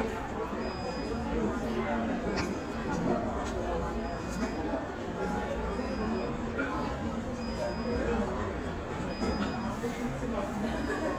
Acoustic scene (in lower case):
crowded indoor space